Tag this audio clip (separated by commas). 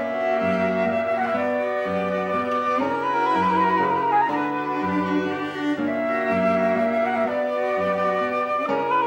woodwind instrument, Flute